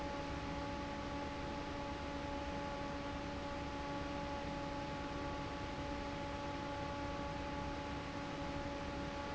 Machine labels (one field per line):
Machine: fan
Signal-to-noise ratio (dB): 0 dB